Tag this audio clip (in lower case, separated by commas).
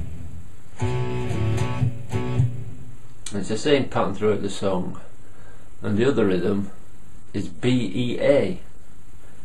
strum, music, electric guitar, speech, musical instrument, guitar, plucked string instrument